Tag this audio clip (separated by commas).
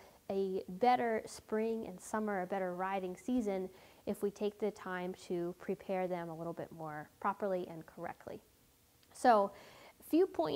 Speech